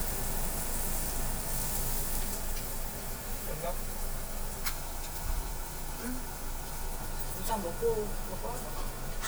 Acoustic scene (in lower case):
restaurant